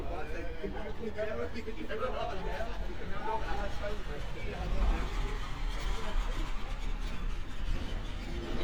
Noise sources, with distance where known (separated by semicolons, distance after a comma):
person or small group talking, near; dog barking or whining, far